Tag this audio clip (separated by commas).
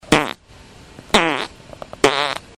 Fart